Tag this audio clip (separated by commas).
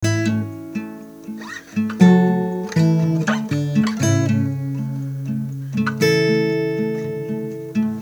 Guitar, Acoustic guitar, Plucked string instrument, Music, Musical instrument